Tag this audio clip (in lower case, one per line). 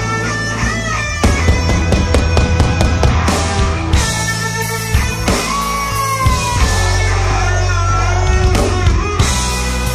roll
music